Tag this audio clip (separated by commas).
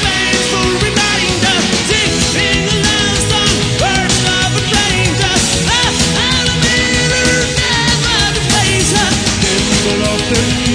Music